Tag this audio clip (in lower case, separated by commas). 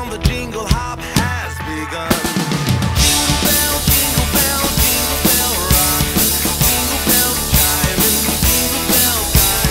music